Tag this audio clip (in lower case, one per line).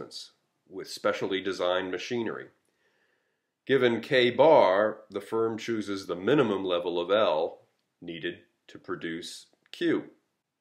speech